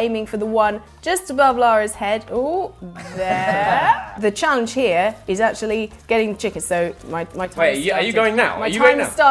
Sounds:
music, speech

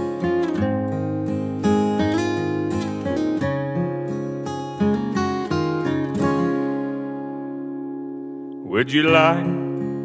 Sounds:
acoustic guitar, music

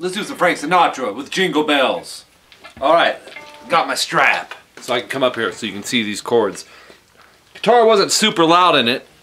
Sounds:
music, speech

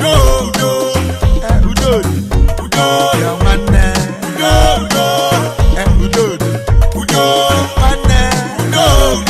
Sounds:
music, music of africa

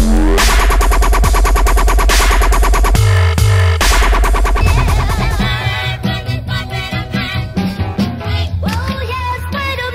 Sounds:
funk, electronic music, dubstep, music

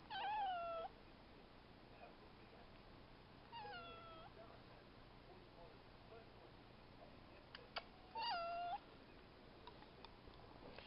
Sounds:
cat, inside a small room

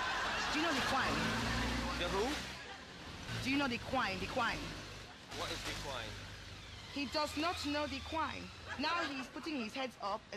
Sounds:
speech

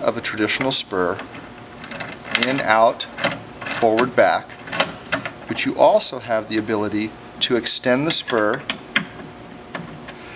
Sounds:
speech

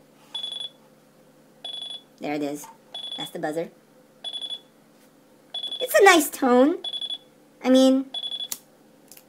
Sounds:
alarm, speech

